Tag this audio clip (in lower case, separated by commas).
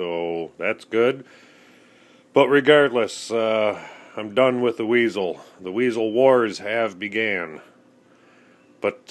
speech